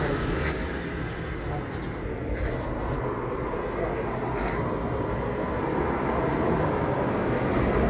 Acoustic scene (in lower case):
residential area